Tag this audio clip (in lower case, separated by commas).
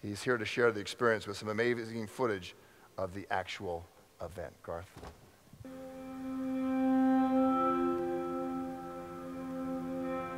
speech, music